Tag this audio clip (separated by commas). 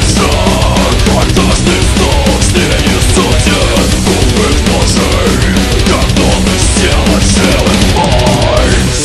Music